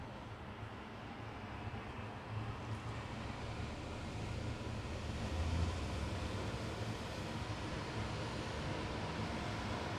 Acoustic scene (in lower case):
residential area